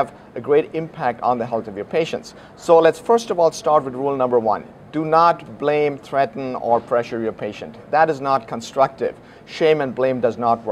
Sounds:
speech

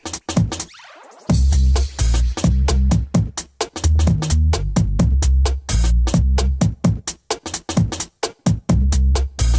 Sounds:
drum machine

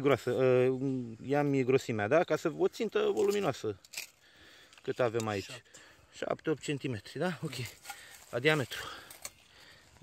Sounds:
speech

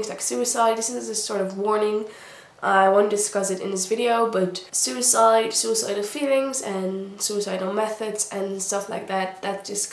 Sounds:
speech

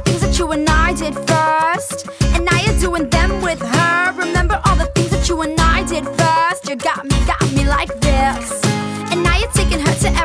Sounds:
music

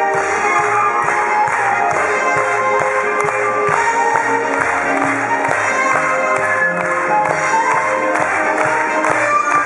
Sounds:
funny music
music

